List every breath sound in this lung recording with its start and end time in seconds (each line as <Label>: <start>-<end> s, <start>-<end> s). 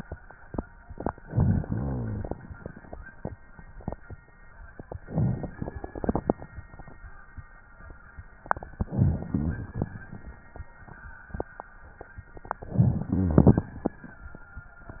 Inhalation: 1.23-2.30 s, 5.08-6.15 s, 8.90-9.83 s, 12.79-13.72 s
Rhonchi: 1.23-2.30 s, 8.90-9.83 s, 12.79-13.72 s